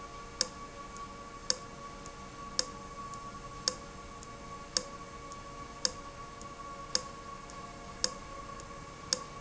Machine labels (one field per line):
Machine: valve